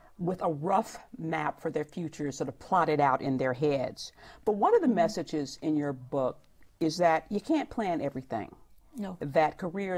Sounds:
speech
female speech

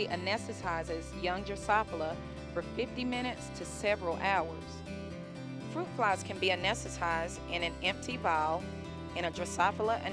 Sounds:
speech
music

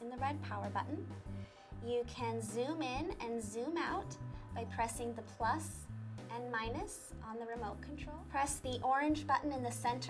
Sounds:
speech
music

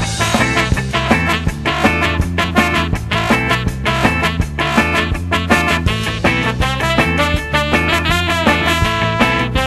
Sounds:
music
swing music

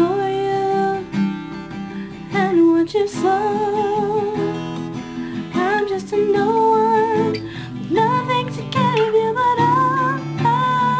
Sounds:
musical instrument
plucked string instrument
guitar
music
strum
acoustic guitar

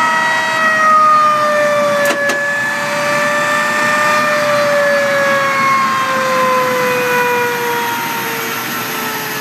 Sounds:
engine
vehicle
jet engine

